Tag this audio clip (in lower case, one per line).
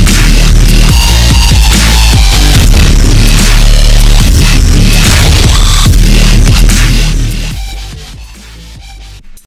dubstep
music
electronic music